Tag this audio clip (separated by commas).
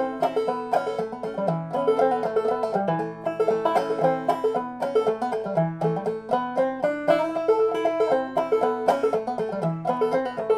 playing banjo